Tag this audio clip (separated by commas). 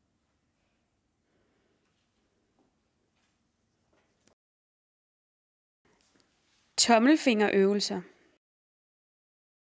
Speech